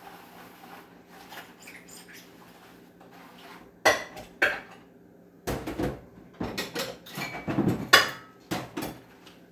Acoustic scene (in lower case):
kitchen